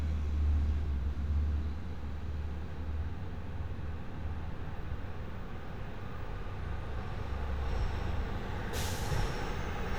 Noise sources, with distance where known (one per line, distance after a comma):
engine of unclear size, near